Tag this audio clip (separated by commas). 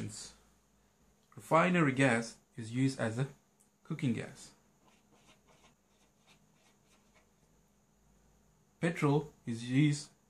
Speech